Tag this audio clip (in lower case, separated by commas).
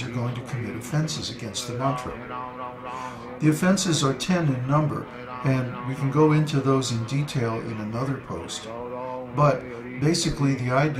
speech, chant